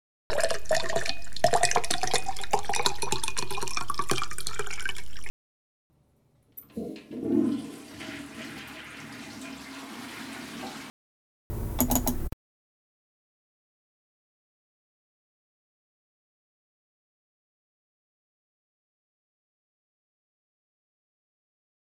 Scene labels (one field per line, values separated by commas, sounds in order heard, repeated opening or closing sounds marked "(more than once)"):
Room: lavatory, bathroom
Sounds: running water, toilet flushing, keyboard typing, light switch